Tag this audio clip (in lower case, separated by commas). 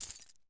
keys jangling, domestic sounds